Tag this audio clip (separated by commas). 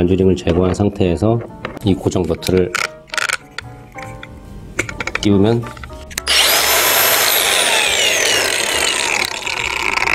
electric grinder grinding